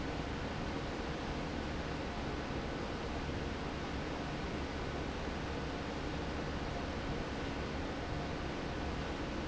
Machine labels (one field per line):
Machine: fan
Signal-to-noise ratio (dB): -6 dB